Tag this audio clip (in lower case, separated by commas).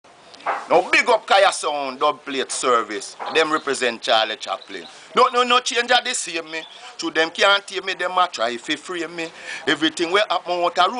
speech, jingle (music)